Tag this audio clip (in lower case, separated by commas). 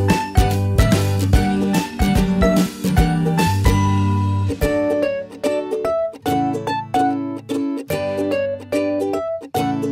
music